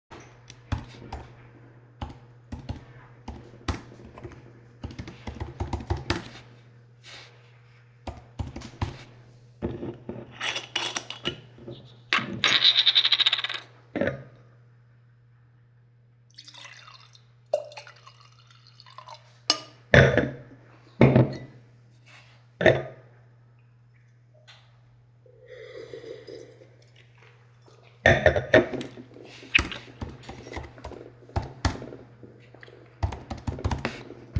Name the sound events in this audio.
keyboard typing